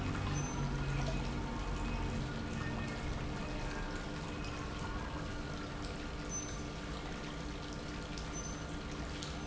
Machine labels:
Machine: pump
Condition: normal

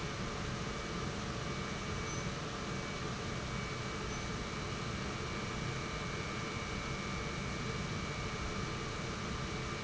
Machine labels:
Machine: pump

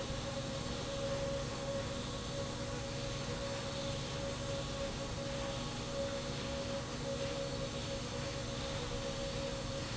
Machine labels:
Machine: slide rail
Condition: normal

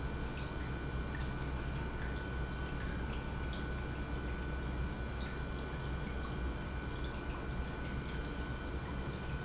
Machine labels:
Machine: pump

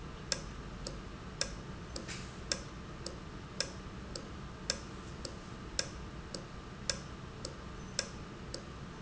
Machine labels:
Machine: valve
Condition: normal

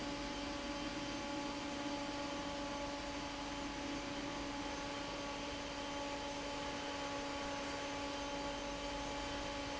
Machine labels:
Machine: fan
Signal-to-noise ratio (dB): 0 dB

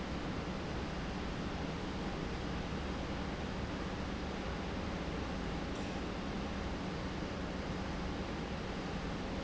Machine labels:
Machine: pump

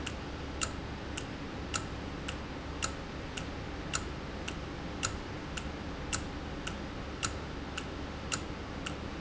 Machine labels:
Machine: valve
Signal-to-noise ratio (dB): -6 dB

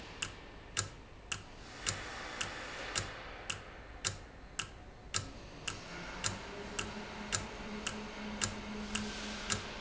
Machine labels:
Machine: valve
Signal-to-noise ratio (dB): 0 dB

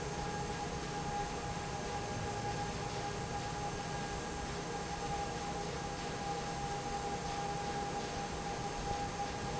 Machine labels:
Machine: fan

